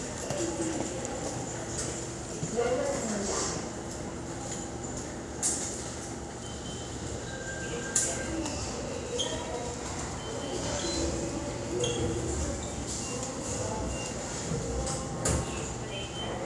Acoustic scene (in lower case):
subway station